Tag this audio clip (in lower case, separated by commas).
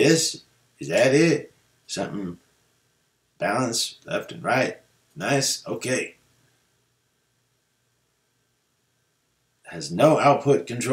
speech